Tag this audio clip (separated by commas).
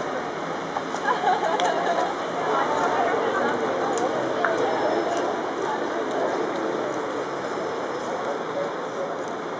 Speech